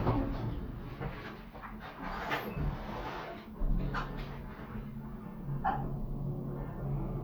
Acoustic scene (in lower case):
elevator